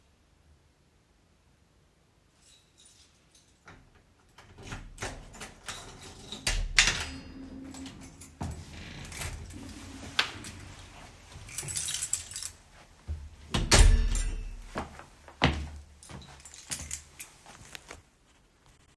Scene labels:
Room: hallway; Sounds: keys, door (more than once), footsteps

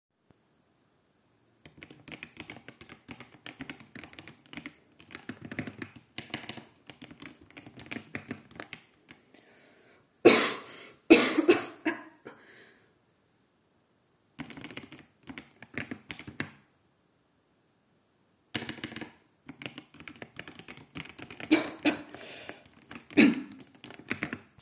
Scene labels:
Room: bedroom; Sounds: keyboard typing

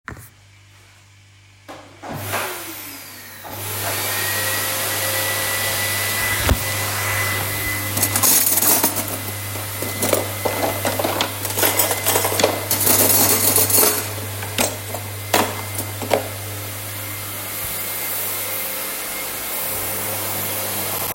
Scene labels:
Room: kitchen; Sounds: vacuum cleaner, cutlery and dishes

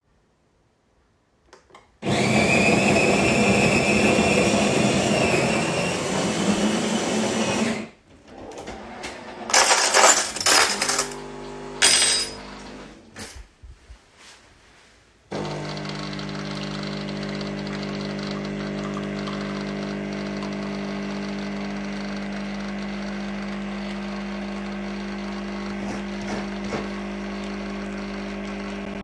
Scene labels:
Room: kitchen; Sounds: coffee machine, wardrobe or drawer, cutlery and dishes

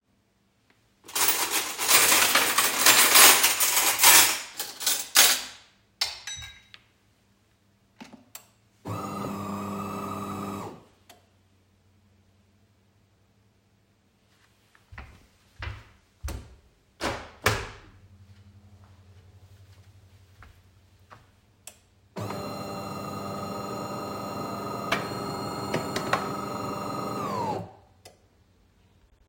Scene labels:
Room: kitchen; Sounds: cutlery and dishes, coffee machine, footsteps, window

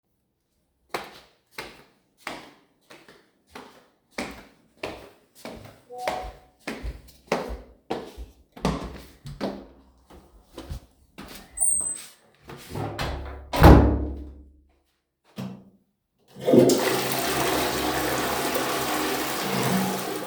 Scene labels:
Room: hallway; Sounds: footsteps, door, toilet flushing

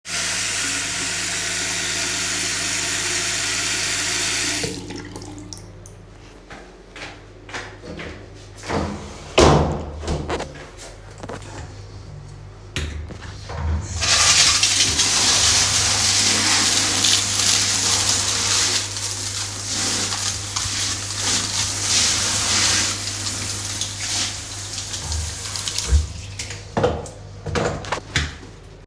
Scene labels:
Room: living room; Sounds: running water, footsteps, door (more than once)

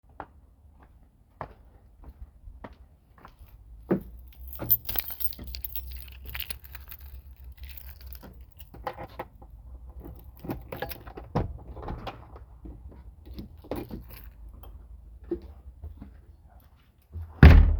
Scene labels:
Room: porch; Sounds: footsteps, keys, door (more than once)

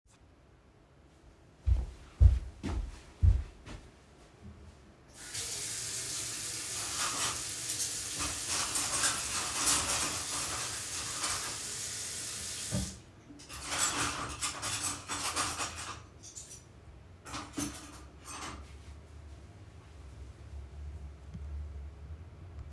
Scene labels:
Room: kitchen; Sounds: footsteps, running water, cutlery and dishes

